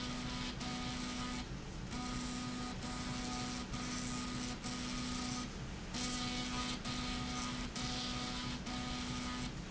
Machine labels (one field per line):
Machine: slide rail